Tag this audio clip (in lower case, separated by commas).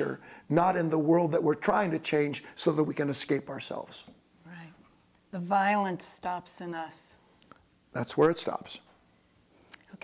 speech, conversation